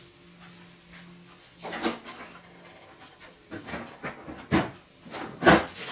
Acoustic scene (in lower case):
kitchen